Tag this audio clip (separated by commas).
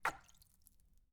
splatter, Liquid